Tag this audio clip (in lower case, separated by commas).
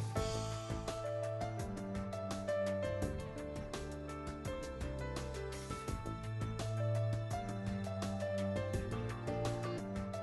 music